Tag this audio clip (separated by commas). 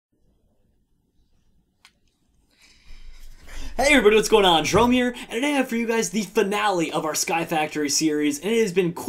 Speech